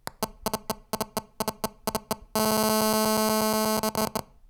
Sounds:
Alarm, Telephone

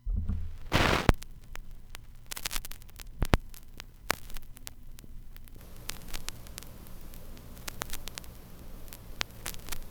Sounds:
Crackle

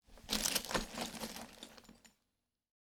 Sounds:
Glass

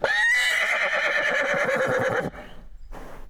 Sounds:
Animal, livestock

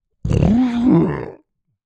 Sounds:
Human voice

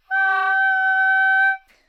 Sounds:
woodwind instrument, Musical instrument, Music

